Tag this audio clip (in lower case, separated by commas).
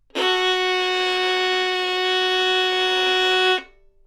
music, musical instrument, bowed string instrument